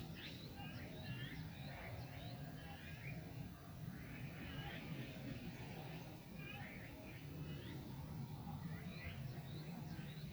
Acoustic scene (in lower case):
park